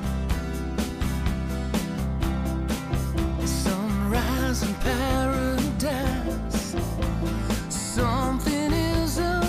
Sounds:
music

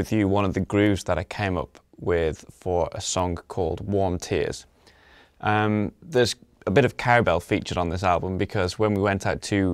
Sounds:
speech

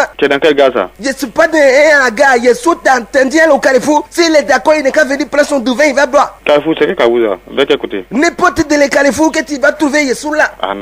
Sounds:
speech

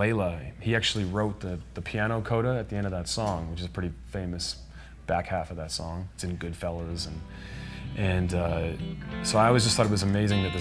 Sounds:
plucked string instrument
acoustic guitar
music
speech
musical instrument

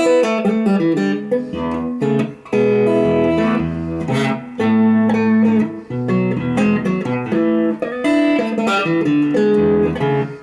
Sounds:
music
plucked string instrument
electric guitar
guitar
musical instrument

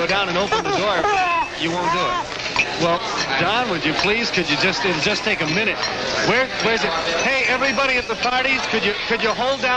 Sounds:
speech

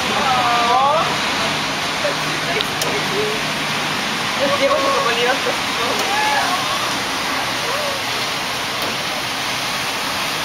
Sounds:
speech

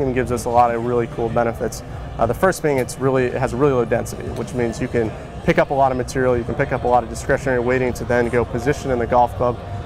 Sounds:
speech

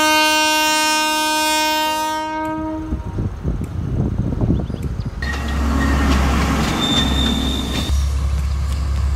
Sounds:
train horning

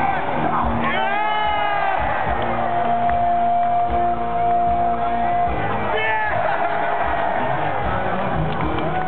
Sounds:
music

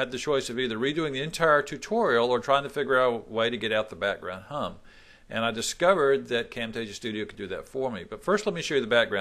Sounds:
speech

